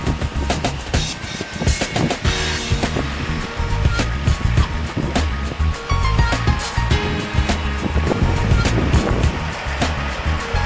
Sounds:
vehicle
music

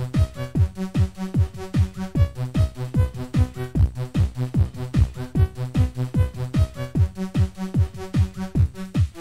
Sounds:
disco
pop music
music

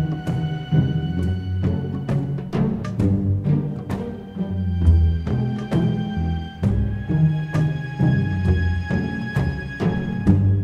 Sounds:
soundtrack music
music

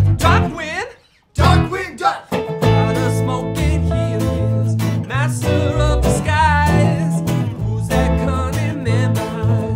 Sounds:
music

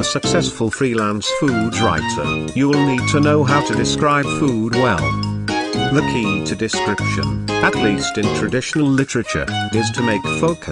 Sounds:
music
speech

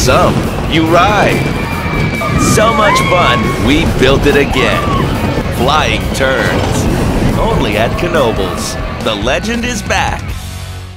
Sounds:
roller coaster running

